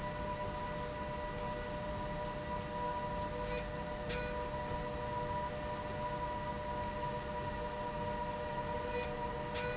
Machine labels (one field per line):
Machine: slide rail